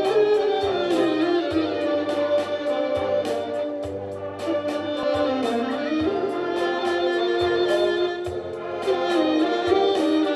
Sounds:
Music, Soul music, Orchestra

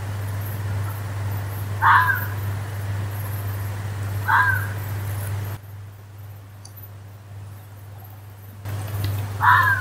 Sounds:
fox barking

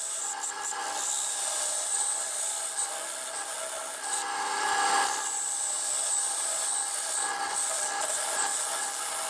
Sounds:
Tools

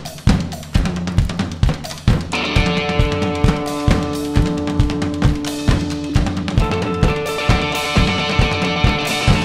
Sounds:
Music

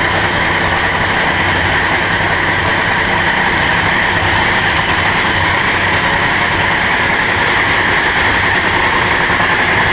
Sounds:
Vehicle

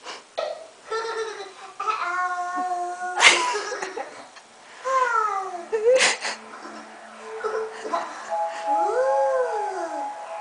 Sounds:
inside a small room

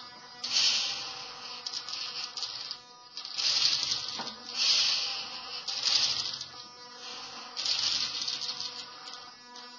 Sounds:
Mains hum

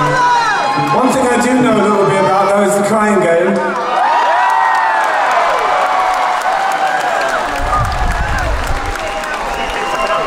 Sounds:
Speech

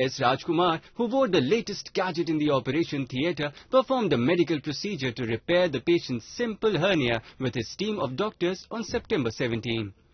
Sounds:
Speech

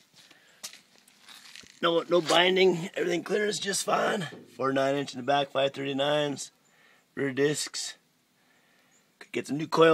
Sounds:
Speech, outside, rural or natural

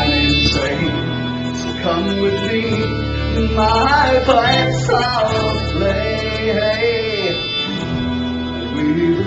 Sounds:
Music

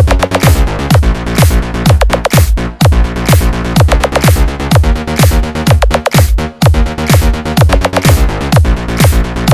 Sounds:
Music

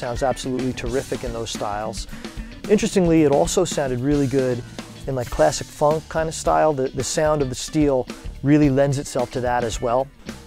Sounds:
Bass drum, Music, Speech

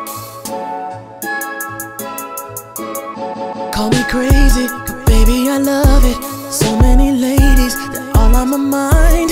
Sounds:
Independent music, Music, Tender music

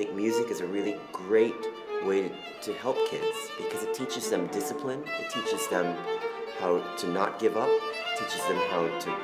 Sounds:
Speech, Music

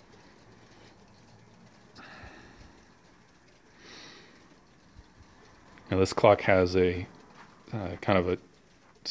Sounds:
Speech

